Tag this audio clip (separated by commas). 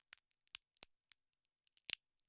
Crack